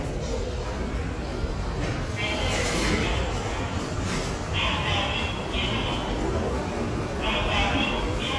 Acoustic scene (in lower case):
subway station